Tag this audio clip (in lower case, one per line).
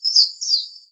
bird vocalization
bird
animal
chirp
wild animals